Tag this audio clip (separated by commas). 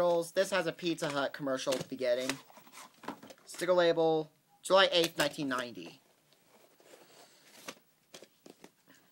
Speech